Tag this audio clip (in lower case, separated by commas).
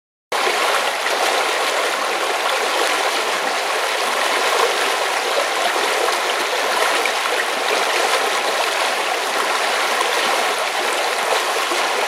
water, stream